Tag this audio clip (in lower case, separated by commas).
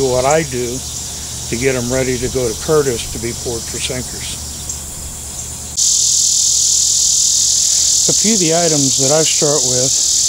insect, cricket